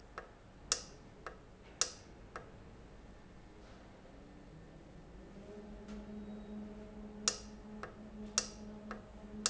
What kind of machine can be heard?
valve